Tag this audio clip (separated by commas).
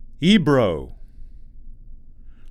Speech, Human voice, Male speech